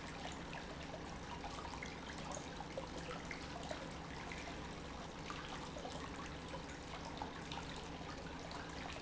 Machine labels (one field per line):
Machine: pump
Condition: normal